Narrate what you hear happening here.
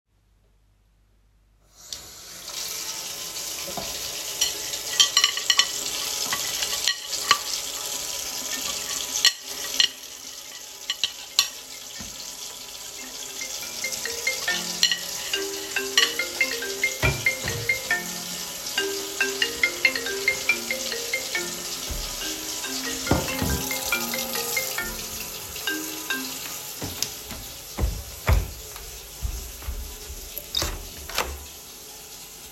I was working on the computer when the phone of my roommate, that is in the other room, rang. I get up, got the keys for the room and walk out of my room to pick it up, while its still ringing.